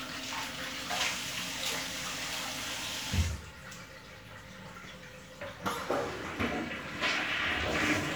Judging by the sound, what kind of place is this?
restroom